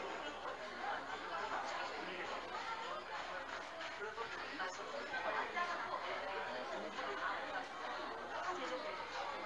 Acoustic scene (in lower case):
crowded indoor space